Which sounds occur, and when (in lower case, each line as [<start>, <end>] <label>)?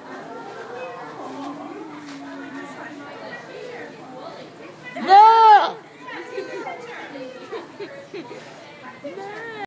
[0.00, 1.09] speech
[0.00, 9.63] background noise
[0.00, 9.63] hubbub
[1.10, 1.81] laughter
[1.29, 1.54] generic impact sounds
[1.99, 2.35] generic impact sounds
[2.18, 3.81] speech
[4.01, 4.43] female speech
[4.57, 4.95] female speech
[4.78, 5.73] bleat
[5.95, 7.35] female speech
[6.04, 6.82] laughter
[6.73, 6.92] generic impact sounds
[7.13, 8.32] laughter
[7.71, 9.63] female speech
[9.01, 9.63] human voice
[9.15, 9.40] generic impact sounds